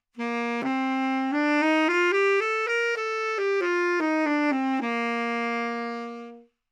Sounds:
musical instrument, music, wind instrument

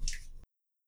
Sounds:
rain, liquid, water, raindrop, drip

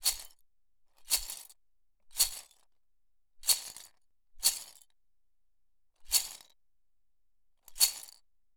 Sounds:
rattle

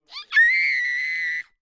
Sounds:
screaming, human voice

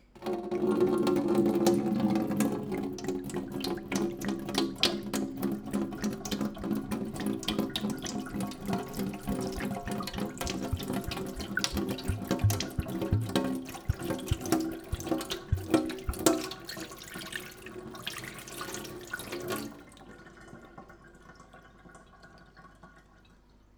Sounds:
faucet, sink (filling or washing), domestic sounds

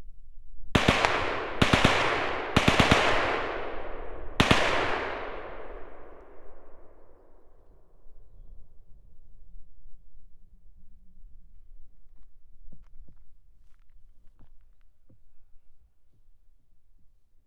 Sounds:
gunfire, explosion

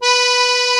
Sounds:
music, musical instrument, accordion

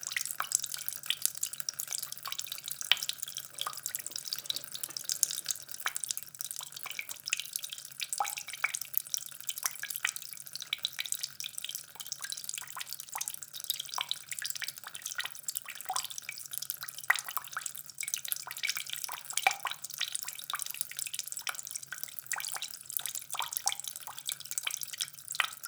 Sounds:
home sounds, faucet

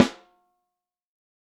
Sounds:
percussion, drum, music, snare drum, musical instrument

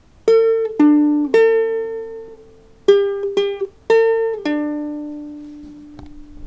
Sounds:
plucked string instrument, music, musical instrument

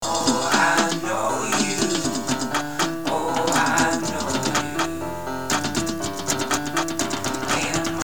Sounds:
piano, musical instrument, keyboard (musical), acoustic guitar, music, guitar, plucked string instrument, human voice

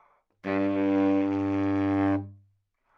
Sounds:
musical instrument, woodwind instrument, music

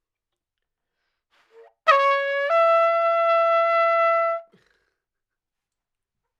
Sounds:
music, trumpet, musical instrument, brass instrument

